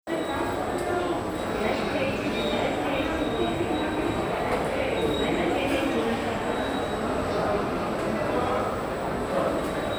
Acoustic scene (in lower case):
subway station